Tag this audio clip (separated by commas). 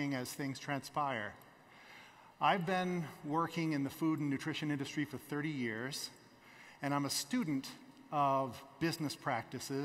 Speech